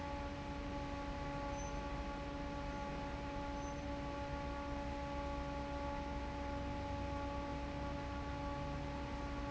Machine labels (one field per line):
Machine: fan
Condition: normal